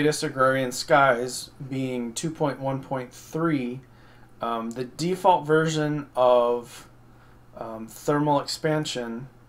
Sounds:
speech

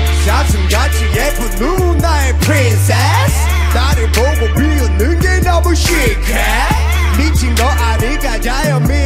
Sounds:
singing, reggae

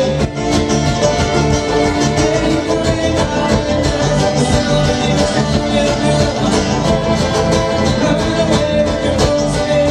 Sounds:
bluegrass, singing

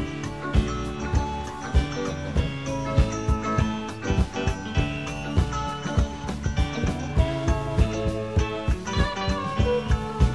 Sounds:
music

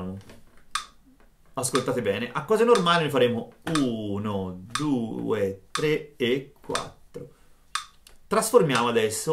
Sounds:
metronome

